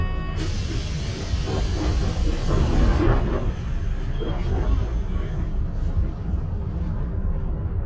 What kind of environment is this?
bus